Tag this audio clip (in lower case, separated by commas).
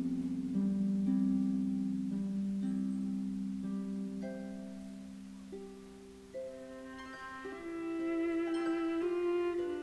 playing harp, music, violin, musical instrument, orchestra, harp, bowed string instrument